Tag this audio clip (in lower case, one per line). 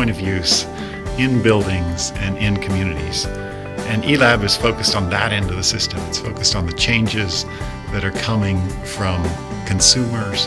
speech
music